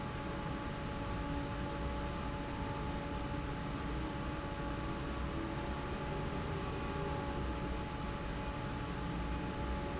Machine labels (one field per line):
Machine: fan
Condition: normal